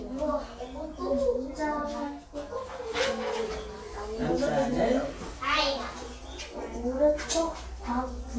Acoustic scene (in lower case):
crowded indoor space